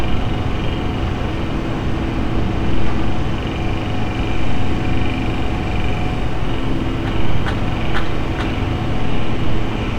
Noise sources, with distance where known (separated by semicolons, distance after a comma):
unidentified impact machinery